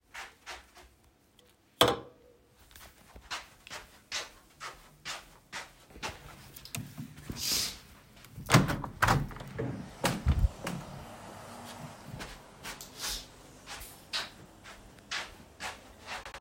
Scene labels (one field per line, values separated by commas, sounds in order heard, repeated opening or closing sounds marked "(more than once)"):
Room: bedroom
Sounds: footsteps, cutlery and dishes, window